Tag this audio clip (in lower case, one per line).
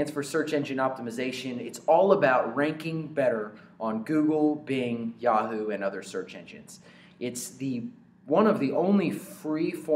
speech